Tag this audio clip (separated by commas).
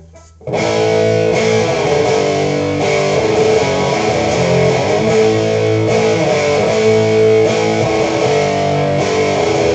Music, Distortion